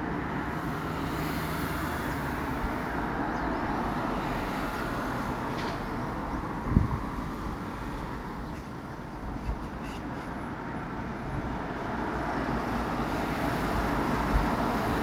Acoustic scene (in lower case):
residential area